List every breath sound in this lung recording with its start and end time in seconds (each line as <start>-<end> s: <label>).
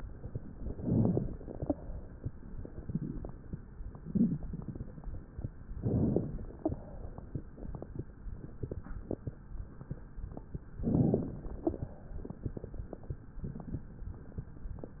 0.72-1.73 s: inhalation
0.72-1.73 s: crackles
5.77-6.78 s: inhalation
5.77-6.78 s: crackles
10.78-11.78 s: inhalation
10.78-11.78 s: crackles